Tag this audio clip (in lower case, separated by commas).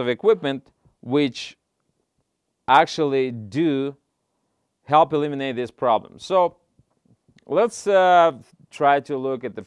speech